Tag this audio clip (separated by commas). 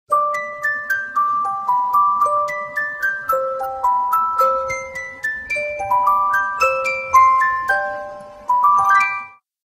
Music, Soundtrack music